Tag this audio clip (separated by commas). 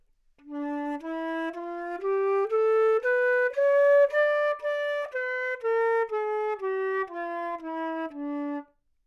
Musical instrument, Wind instrument, Music